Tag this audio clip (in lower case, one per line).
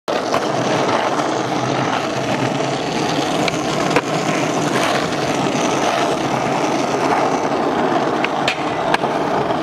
skateboarding